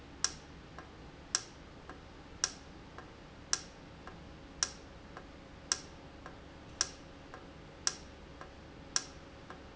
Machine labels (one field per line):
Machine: valve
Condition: normal